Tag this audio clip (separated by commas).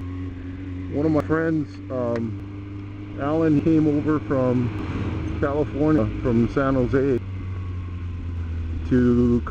Car passing by, Vehicle, Speech, Car